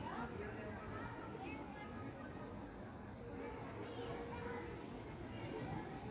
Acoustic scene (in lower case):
park